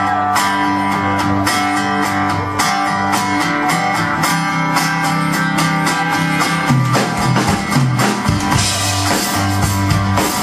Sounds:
Music, Speech

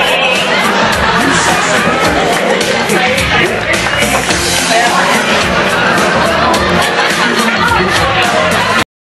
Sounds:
Music

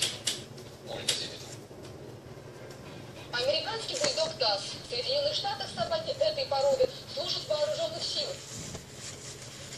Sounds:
inside a small room, Television, Speech

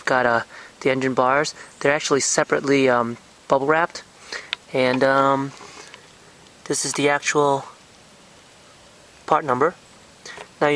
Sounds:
Speech

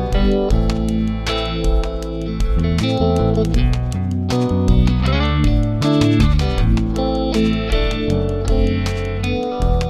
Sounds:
Music

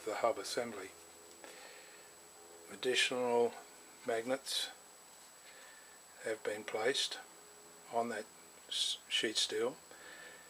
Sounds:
Speech

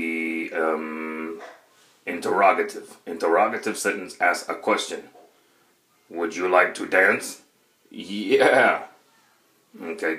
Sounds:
Speech

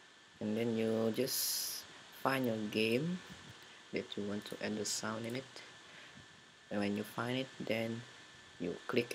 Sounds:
Speech

